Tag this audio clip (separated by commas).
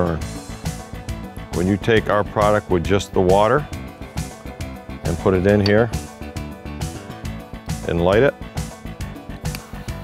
Music, Speech